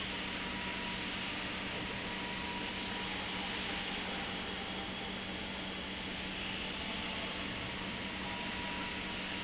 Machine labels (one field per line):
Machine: pump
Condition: normal